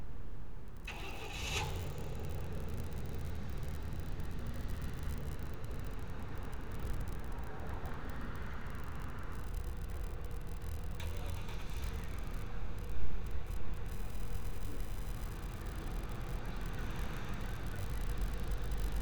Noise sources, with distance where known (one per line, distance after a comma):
medium-sounding engine, near